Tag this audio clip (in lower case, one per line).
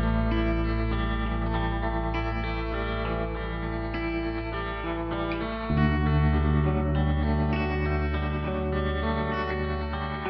music
effects unit